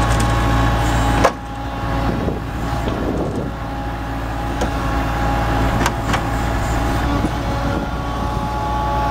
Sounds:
microwave oven, vehicle

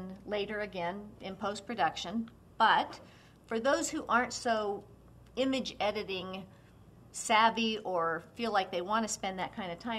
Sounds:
speech

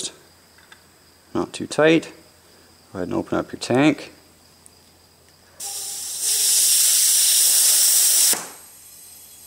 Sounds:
steam, hiss

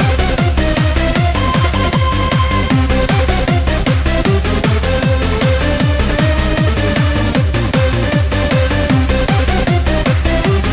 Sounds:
techno, music

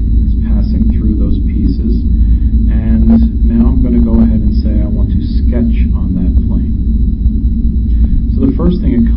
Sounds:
music, speech

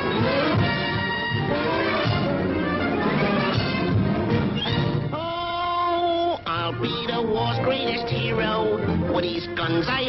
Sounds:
music

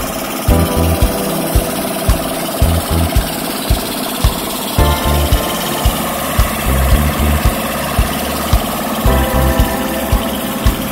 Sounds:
music, idling, heavy engine (low frequency), engine, vehicle

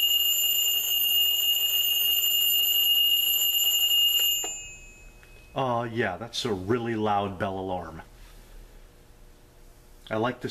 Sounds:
clock, alarm, alarm clock, speech

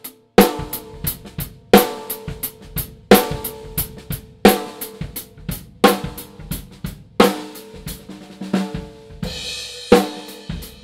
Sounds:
drum kit, musical instrument, drum, cymbal, music

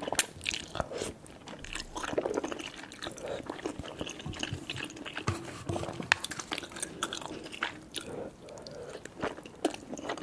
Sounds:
people slurping

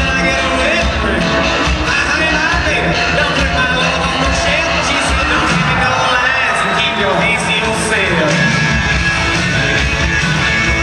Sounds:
inside a public space, music, speech

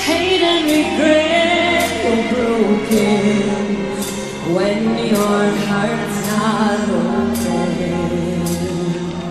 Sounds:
music

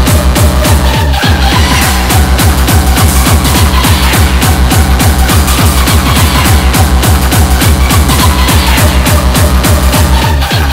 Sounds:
electronic music, music, techno

